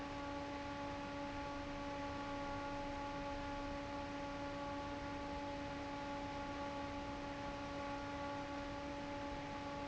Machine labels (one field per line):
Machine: fan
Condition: normal